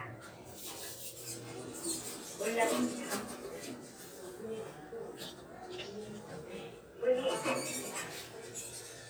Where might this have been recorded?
in an elevator